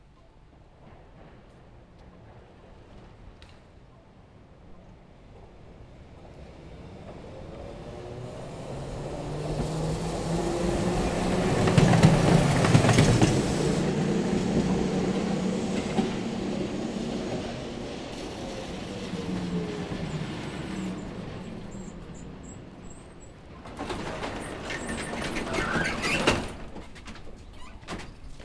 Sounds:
vehicle

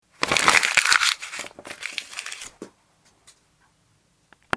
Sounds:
crinkling

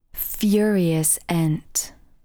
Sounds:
human voice
woman speaking
speech

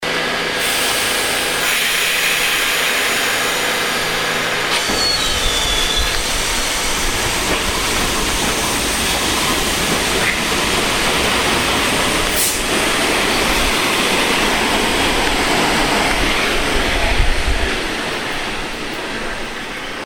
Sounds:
rail transport
vehicle
subway

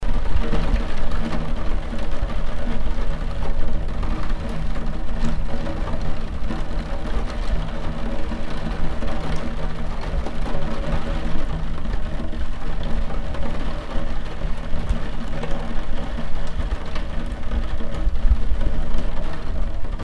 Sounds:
rain
water

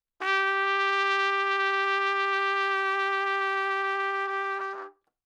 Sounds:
music
brass instrument
trumpet
musical instrument

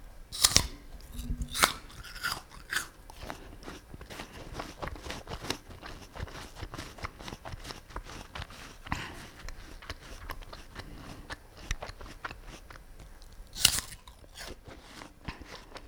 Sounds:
chewing

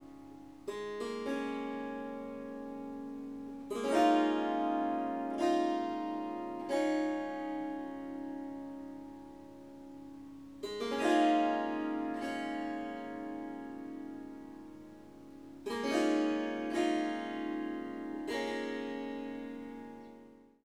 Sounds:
harp
music
musical instrument

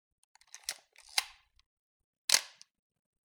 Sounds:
camera
mechanisms

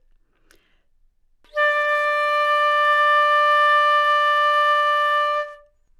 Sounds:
music
wind instrument
musical instrument

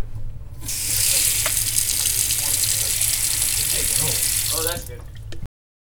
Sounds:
sink (filling or washing)
water
home sounds

